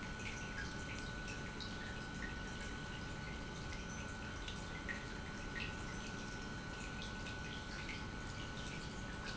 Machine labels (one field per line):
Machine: pump